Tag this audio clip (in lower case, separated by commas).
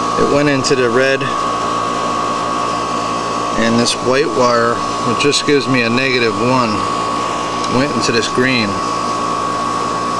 speech, inside a small room